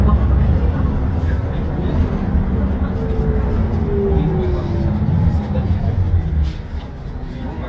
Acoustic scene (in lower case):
bus